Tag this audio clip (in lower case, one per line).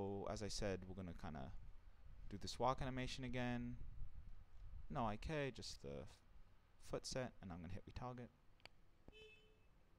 speech